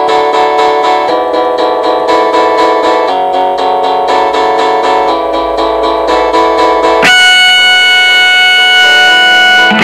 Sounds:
electric guitar
musical instrument
plucked string instrument
guitar
strum
music

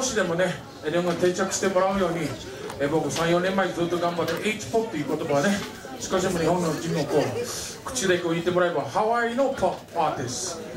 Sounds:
speech

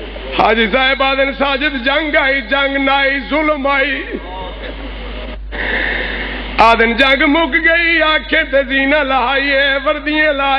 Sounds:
speech

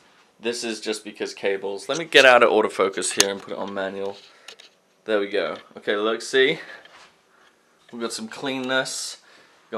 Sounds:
inside a small room
speech

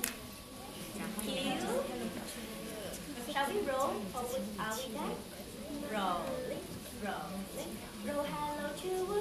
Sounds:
speech

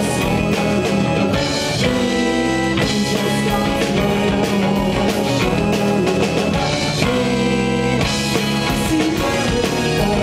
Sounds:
music

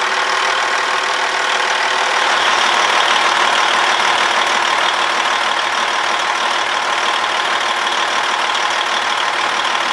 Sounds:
truck
vehicle

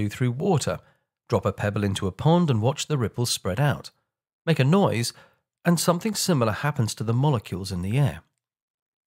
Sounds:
speech

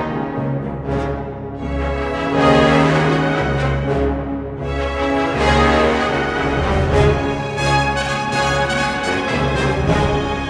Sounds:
music

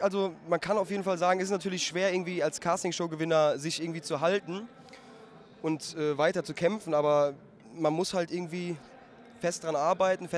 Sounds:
speech

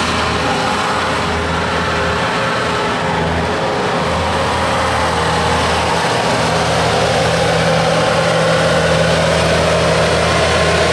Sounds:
truck
vehicle

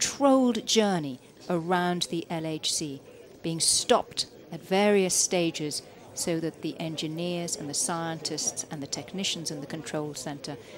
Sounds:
speech

